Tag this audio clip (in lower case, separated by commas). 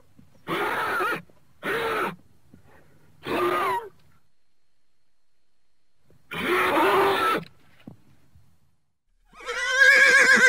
horse neighing